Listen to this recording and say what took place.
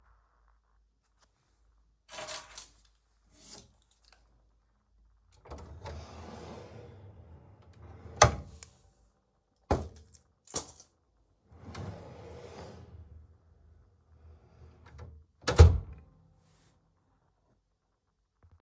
i opened the drawer of the desk and placed my keys and AirPods inside. after that i closed the drawer again.